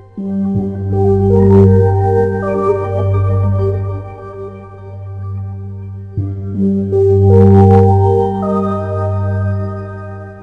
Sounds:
video game music
soundtrack music
music

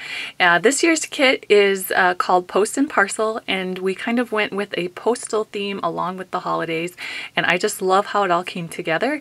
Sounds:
speech

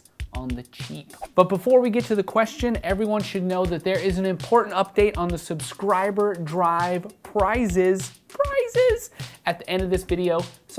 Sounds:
speech
music

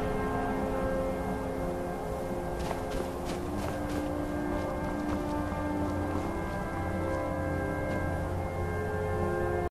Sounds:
music
footsteps

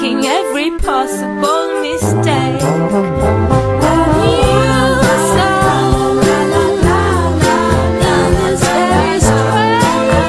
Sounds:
music

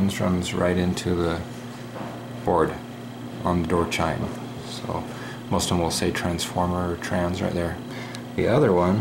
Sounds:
speech

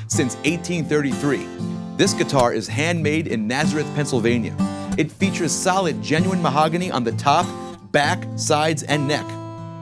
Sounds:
acoustic guitar
speech
guitar
musical instrument
music
plucked string instrument

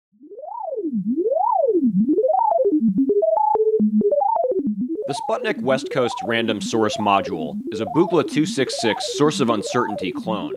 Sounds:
music
speech
synthesizer

